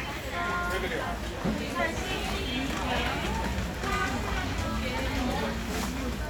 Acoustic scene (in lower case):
crowded indoor space